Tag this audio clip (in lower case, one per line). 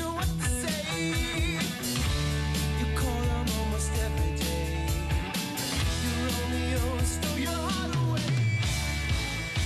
music